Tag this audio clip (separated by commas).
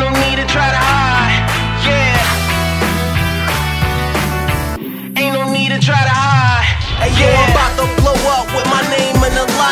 Music